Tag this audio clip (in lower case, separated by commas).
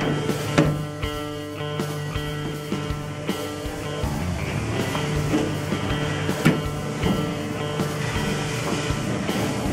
music